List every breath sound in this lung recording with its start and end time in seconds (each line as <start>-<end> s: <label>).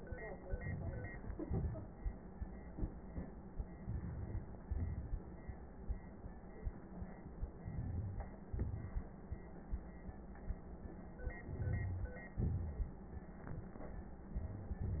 0.42-1.19 s: crackles
0.44-1.23 s: inhalation
1.20-2.73 s: exhalation
1.20-2.73 s: crackles
3.67-4.63 s: crackles
3.67-4.65 s: inhalation
4.64-5.79 s: exhalation
4.64-5.79 s: crackles
7.53-8.47 s: inhalation
7.53-8.47 s: crackles
8.49-9.84 s: exhalation
8.49-9.84 s: crackles
11.12-12.29 s: crackles
11.14-12.35 s: inhalation
12.33-13.43 s: exhalation
12.33-13.43 s: crackles